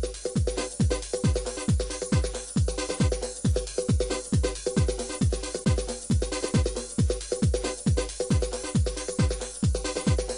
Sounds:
music, background music

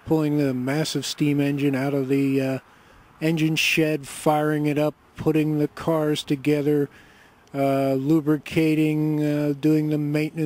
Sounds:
speech

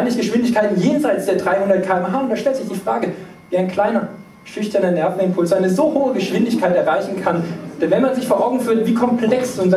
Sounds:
speech

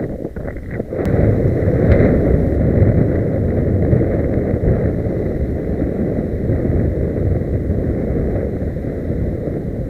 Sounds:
vehicle, motor vehicle (road)

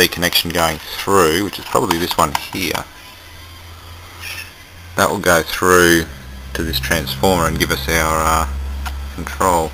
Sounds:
speech

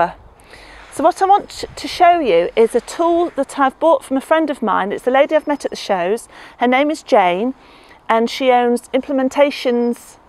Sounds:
speech

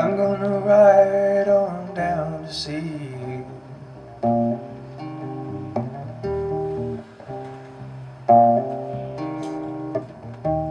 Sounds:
guitar, music, musical instrument, singing, inside a large room or hall, plucked string instrument

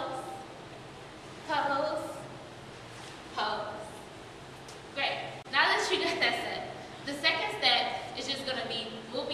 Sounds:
speech

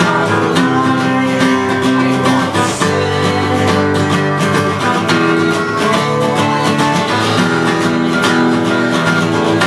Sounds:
music

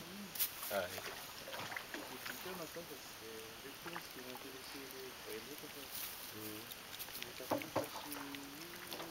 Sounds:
speech

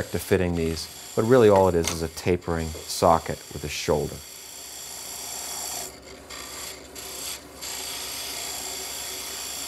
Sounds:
speech, tools, wood

